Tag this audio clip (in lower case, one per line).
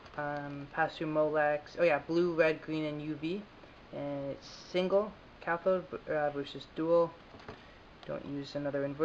speech